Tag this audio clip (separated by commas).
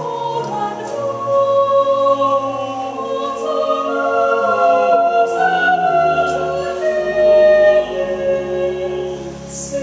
Music